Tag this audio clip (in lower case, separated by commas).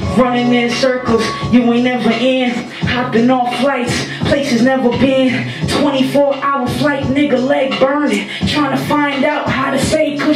music, hip hop music